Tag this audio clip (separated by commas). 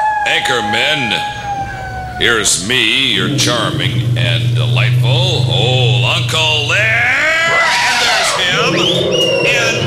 Radio, Speech